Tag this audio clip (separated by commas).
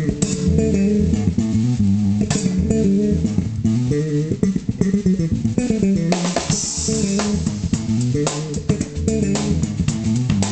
Drum, Plucked string instrument, Music, Guitar, Drum kit, Bass guitar, Musical instrument